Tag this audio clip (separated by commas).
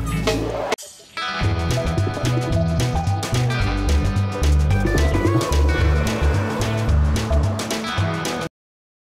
Music